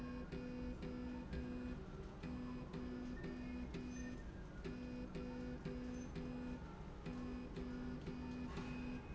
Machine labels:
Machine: slide rail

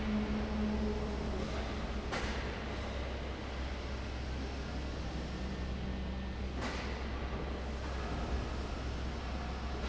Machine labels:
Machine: fan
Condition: abnormal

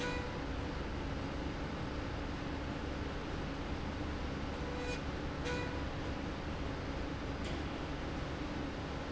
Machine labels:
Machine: slide rail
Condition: normal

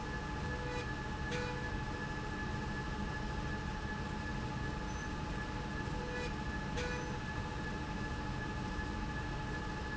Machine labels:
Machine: slide rail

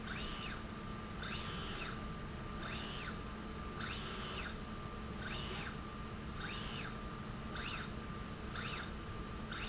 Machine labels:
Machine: slide rail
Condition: normal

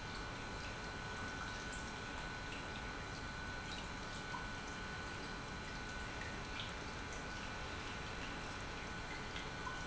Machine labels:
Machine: pump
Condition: normal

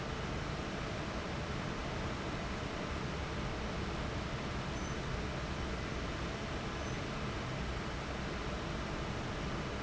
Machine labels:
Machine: fan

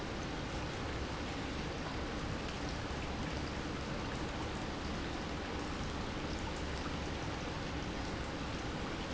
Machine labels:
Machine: pump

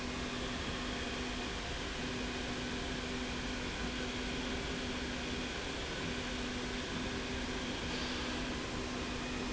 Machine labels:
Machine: slide rail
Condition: normal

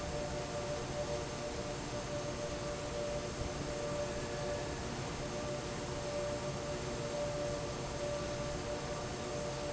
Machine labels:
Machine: fan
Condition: normal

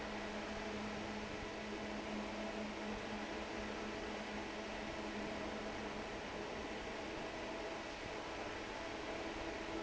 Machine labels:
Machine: fan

